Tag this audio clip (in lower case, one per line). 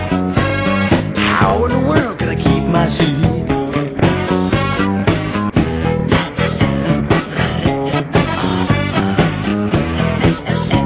music
disco